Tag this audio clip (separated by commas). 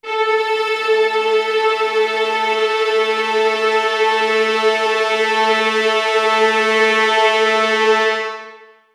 Musical instrument, Music